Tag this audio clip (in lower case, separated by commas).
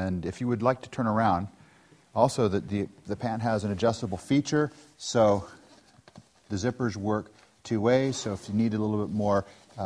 speech